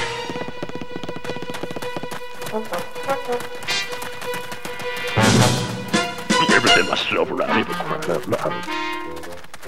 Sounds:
Music, Speech

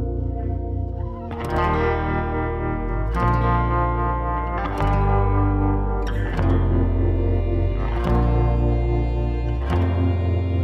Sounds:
Country, Music

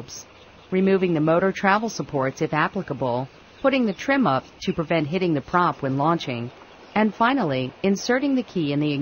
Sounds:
Speech

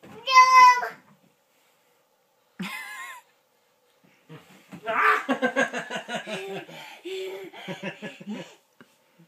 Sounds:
Child speech, Belly laugh

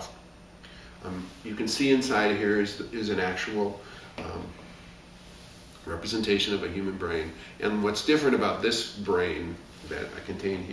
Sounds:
inside a small room, Speech

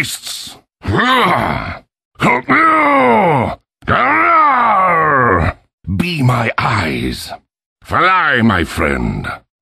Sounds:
Speech, Groan

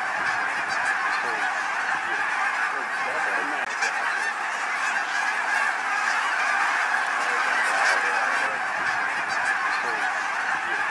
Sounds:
goose honking

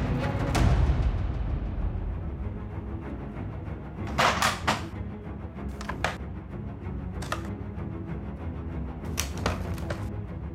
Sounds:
Music

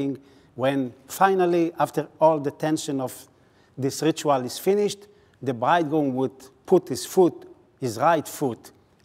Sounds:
Speech

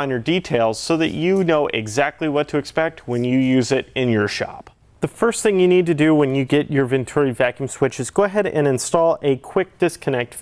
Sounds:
Speech

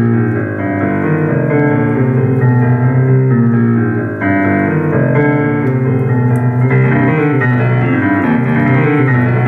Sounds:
Music, Exciting music

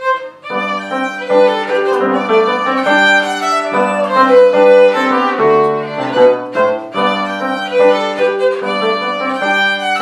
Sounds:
Musical instrument, Music, fiddle

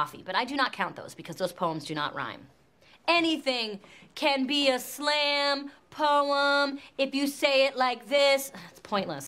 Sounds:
Speech

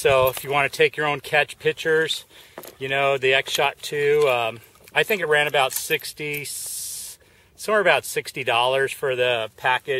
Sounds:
Speech

